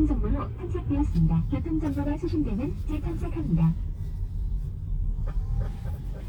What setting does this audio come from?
car